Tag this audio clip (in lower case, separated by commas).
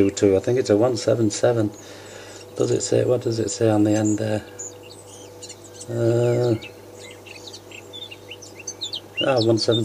tweet, speech, bird call